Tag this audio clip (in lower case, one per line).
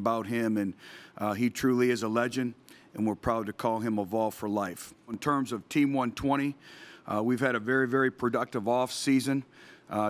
speech